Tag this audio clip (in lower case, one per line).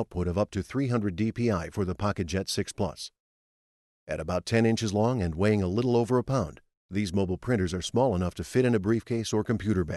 speech